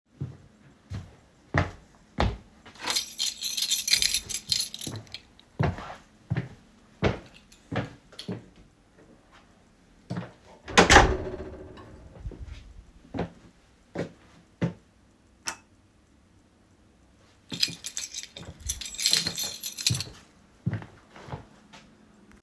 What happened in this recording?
I grabbed my keys and headed out. After opening the door I switched off the light.